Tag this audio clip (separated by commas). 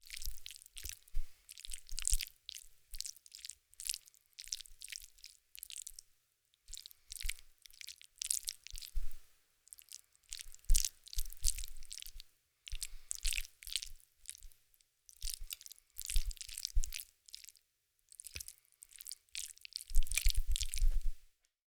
mastication